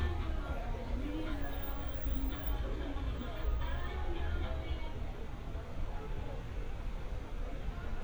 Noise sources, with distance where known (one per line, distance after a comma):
music from an unclear source
person or small group talking, far